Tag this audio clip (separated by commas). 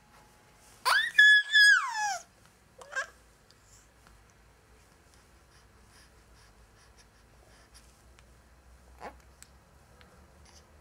Laughter